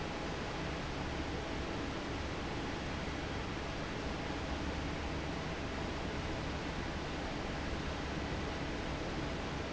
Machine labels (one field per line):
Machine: fan